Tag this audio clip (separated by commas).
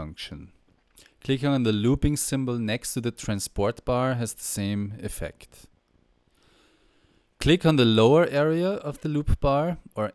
Speech